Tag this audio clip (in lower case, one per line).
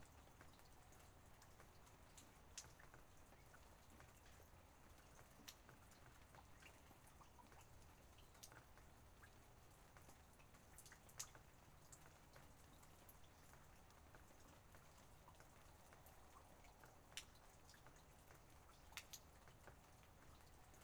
rain
water